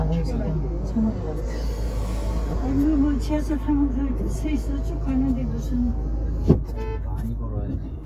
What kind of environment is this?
car